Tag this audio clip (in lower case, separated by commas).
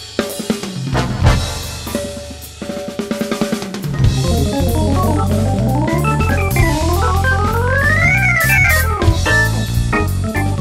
accordion